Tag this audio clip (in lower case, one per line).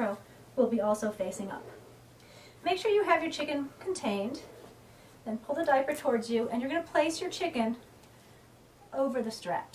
speech